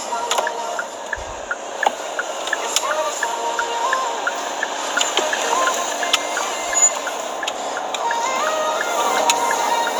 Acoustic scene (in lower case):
car